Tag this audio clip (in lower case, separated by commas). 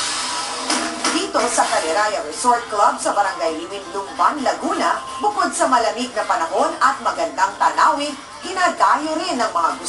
speech, music